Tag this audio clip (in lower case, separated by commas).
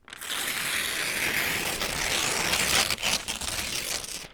tearing